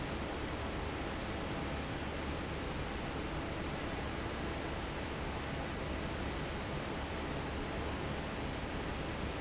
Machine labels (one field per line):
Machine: fan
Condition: normal